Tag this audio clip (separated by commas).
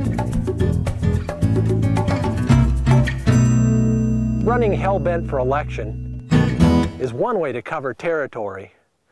Speech, Music